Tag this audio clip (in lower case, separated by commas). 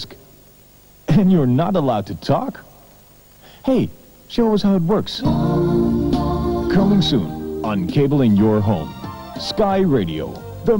music, speech, radio